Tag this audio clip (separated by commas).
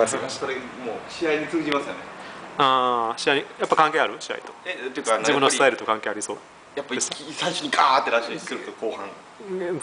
inside a small room, Speech